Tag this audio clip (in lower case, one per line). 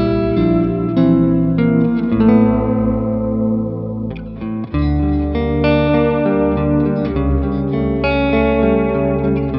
music